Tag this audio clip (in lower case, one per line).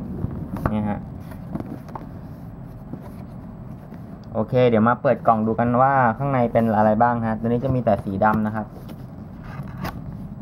speech